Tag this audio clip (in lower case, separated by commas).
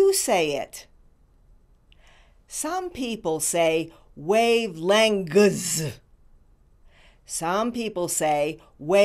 monologue, speech, female speech